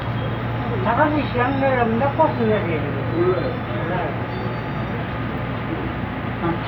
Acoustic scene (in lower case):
subway train